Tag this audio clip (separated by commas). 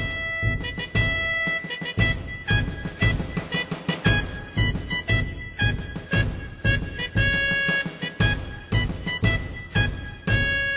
Music